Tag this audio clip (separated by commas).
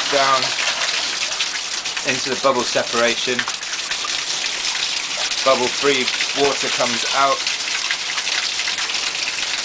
Water